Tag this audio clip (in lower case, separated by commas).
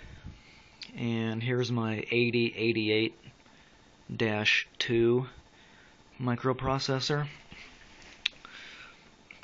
speech, inside a small room